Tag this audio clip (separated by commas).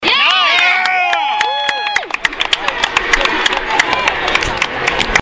Cheering, Clapping, Human group actions, Hands